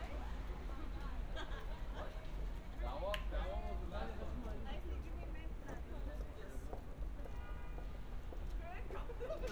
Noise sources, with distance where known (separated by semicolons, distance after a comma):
car horn, far; person or small group talking, far